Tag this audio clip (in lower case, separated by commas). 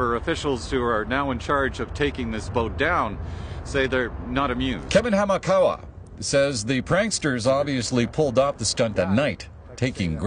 speech